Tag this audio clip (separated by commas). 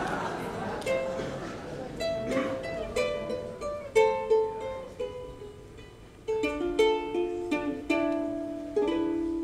Music, inside a small room, Musical instrument, Speech, Ukulele